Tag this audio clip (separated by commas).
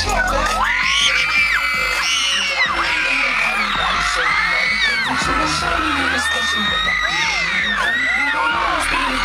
Music